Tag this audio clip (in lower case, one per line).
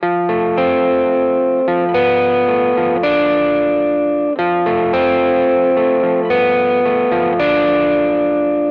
plucked string instrument
musical instrument
guitar
music